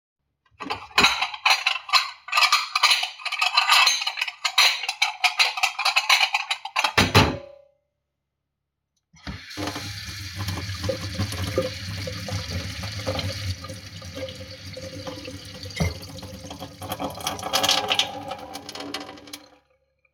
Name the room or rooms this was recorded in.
kitchen